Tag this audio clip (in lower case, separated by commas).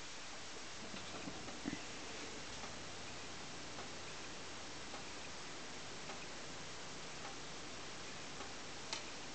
microwave oven